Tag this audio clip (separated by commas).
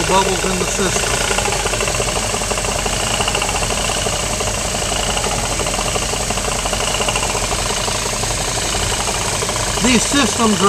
Speech, Vehicle